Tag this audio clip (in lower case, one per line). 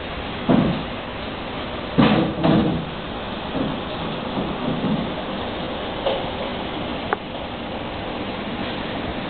static